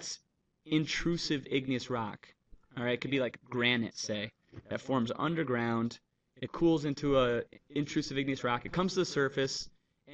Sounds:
Speech, monologue

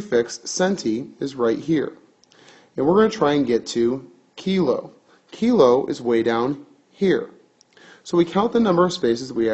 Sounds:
Speech

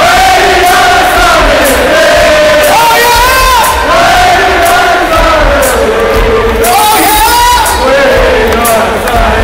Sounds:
Music, people crowd, Crowd, Singing

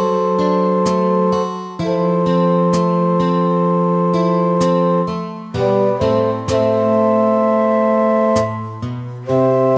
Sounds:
Keyboard (musical), Organ, Music, Electronic organ

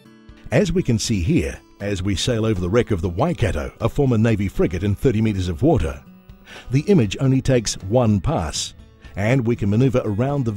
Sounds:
Speech, Music

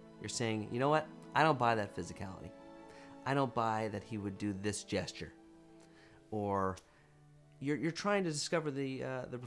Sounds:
Speech

